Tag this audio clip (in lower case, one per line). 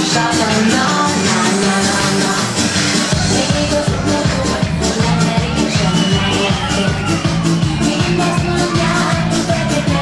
music